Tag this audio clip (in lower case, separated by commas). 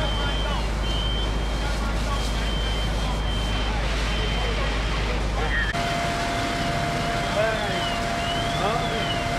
crackle, buzzer, speech